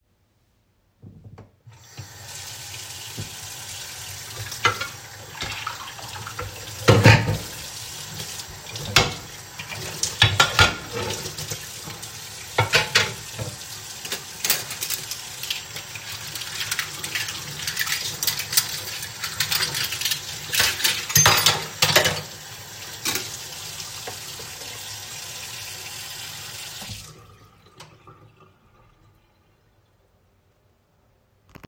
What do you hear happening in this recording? I opened the tap and started washing dishes, then I started washing cutlery, then I putted the cutlery down and closed the running water waiting for it to stop pouring.